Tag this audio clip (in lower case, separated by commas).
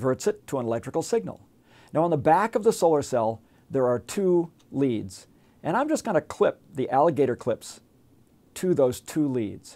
speech